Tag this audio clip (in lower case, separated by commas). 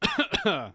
respiratory sounds, cough